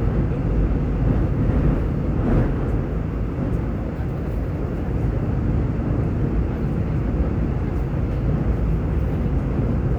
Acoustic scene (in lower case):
subway train